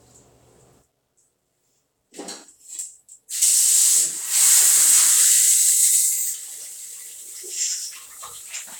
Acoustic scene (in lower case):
restroom